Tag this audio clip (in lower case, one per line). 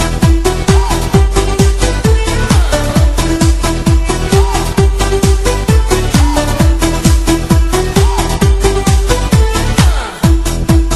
music